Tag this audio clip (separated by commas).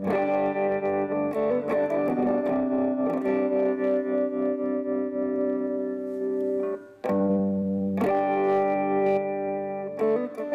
Guitar, Distortion, Effects unit, Reverberation, Music